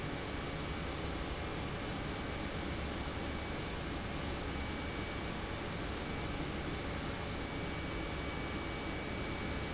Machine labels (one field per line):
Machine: pump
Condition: normal